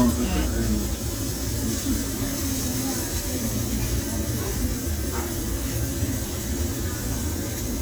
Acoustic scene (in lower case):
restaurant